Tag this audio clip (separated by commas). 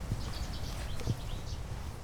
Wild animals, Bird, Animal